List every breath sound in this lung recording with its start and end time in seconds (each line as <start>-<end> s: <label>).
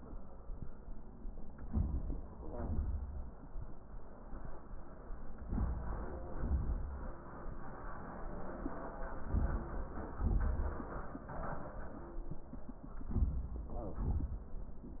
1.66-2.26 s: inhalation
2.31-3.05 s: exhalation
5.42-6.27 s: inhalation
6.28-7.13 s: exhalation
9.17-10.10 s: inhalation
10.08-11.00 s: exhalation
13.02-13.73 s: inhalation
13.72-14.44 s: exhalation